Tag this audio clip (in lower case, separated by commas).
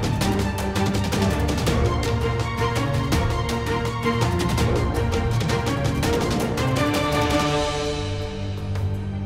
music